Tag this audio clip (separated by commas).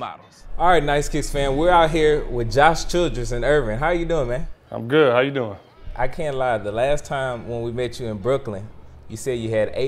Speech